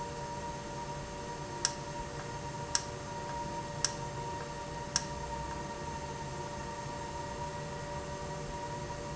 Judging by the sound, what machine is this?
valve